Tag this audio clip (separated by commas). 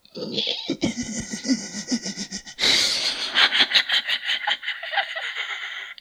Laughter, Human voice